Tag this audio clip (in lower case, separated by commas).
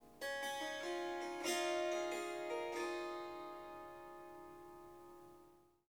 harp, music, musical instrument